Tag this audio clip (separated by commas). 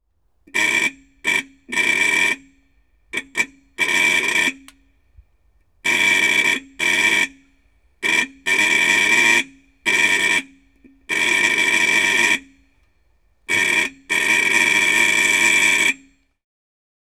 Vehicle, Motor vehicle (road)